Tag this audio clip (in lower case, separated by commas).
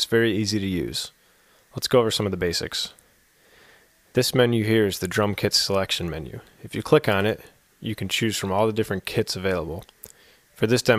speech